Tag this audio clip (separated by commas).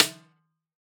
Music, Percussion, Drum, Snare drum, Musical instrument